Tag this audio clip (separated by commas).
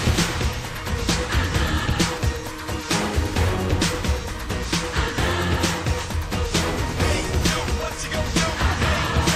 Music